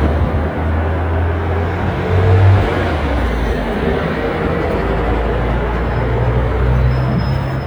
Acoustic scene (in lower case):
street